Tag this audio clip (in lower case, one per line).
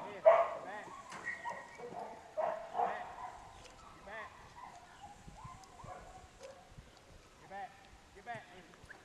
speech
dog bow-wow
bow-wow